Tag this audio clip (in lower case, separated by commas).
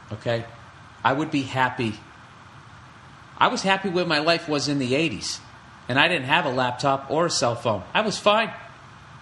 speech